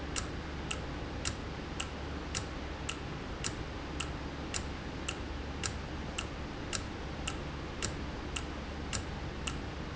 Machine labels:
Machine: valve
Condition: normal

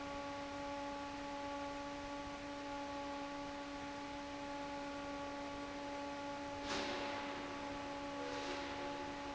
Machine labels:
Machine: fan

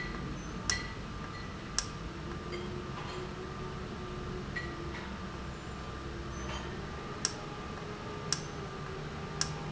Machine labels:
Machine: valve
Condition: normal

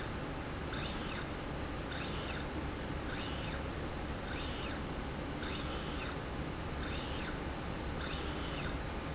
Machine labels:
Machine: slide rail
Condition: normal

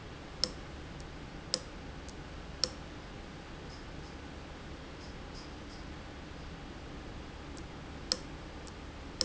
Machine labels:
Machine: valve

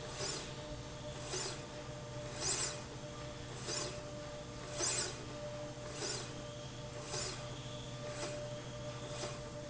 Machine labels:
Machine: slide rail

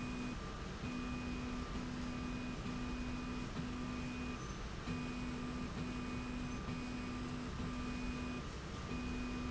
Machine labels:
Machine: slide rail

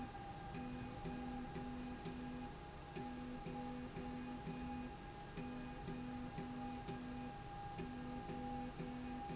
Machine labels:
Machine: slide rail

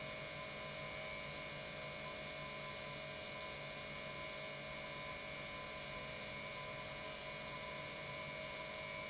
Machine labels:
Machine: pump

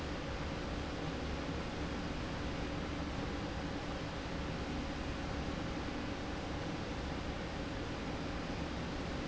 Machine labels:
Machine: slide rail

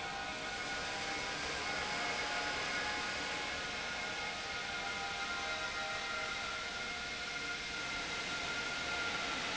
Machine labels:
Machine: pump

